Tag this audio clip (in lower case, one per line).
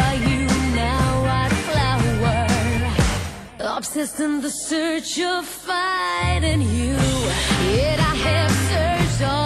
exciting music
music